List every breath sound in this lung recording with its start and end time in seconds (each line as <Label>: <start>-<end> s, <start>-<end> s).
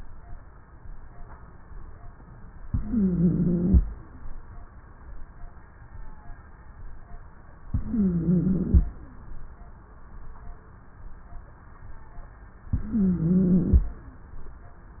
Inhalation: 2.65-3.82 s, 7.68-8.85 s, 12.74-13.91 s
Wheeze: 2.65-3.82 s, 7.68-8.85 s, 12.74-13.91 s